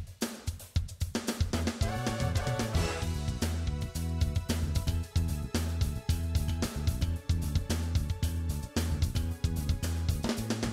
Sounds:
Music

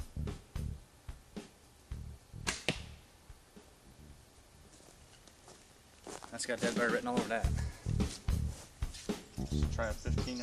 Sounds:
Arrow

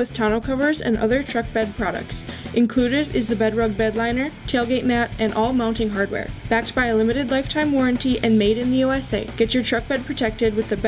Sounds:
Music, Speech

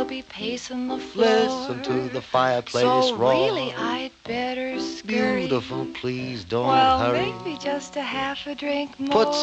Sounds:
Music

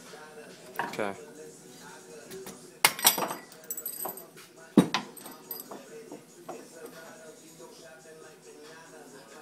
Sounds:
Music, Speech

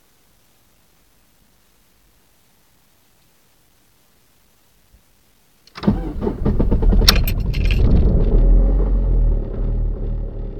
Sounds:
Vehicle, Car, Medium engine (mid frequency), Engine starting, Engine

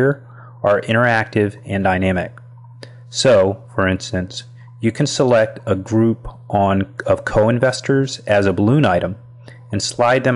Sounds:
Speech

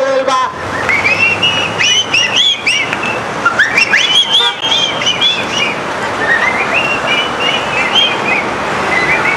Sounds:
Speech

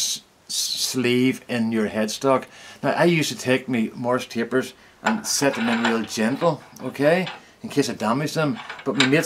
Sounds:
Tools, Speech

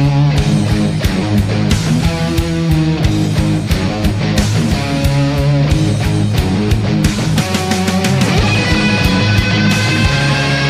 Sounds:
Electronic music, Music, Heavy metal, Rock music

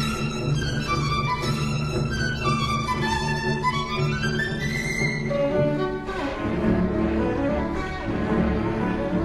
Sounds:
Musical instrument, Music, Violin

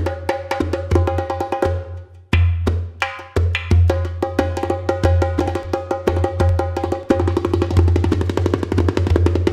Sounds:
Percussion, Drum

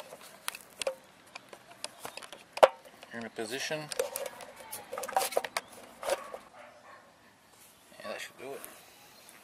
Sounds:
Bow-wow

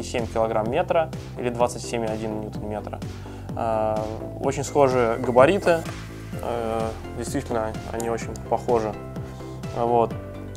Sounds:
Speech, Music

